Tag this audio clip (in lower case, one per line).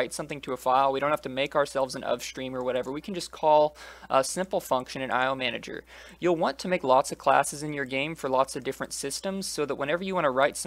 speech